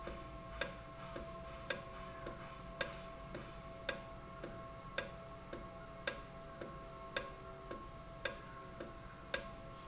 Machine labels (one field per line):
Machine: valve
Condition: normal